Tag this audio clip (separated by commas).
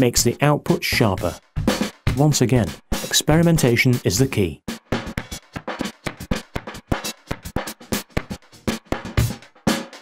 Sound effect, Speech, Music